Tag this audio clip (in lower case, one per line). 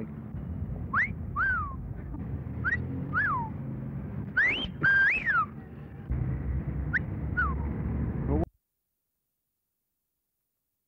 people whistling